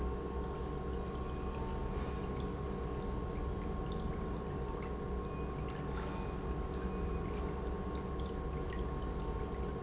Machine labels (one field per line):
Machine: pump